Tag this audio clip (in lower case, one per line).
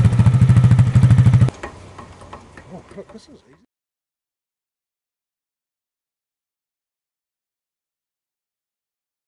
speech